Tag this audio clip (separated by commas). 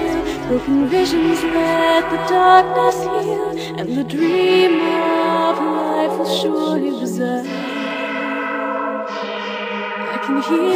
Music, Sound effect